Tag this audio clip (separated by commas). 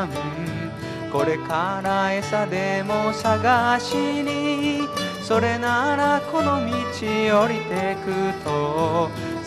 Music